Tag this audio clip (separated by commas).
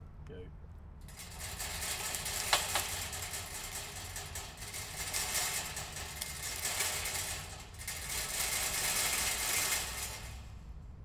Rattle